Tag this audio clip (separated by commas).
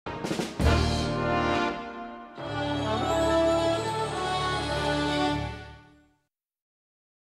Television, Music